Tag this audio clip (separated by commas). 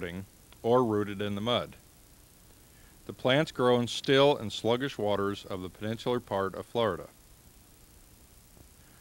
Speech